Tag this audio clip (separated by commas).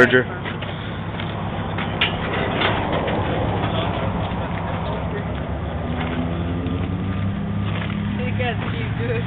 Speech